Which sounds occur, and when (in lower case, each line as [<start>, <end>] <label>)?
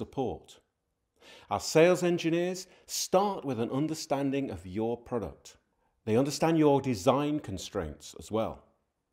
[0.00, 0.66] male speech
[0.01, 9.12] background noise
[1.44, 2.53] male speech
[2.83, 5.33] male speech
[6.05, 7.95] male speech
[8.14, 8.52] male speech